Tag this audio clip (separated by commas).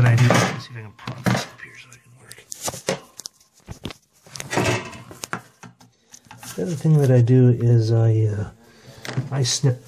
Speech, inside a small room